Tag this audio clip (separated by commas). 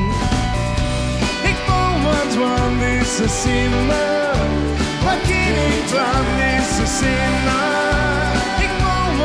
Music